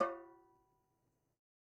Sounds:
Music, Musical instrument, Percussion, Drum

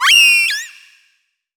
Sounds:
Animal

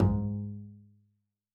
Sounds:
Musical instrument, Bowed string instrument, Music

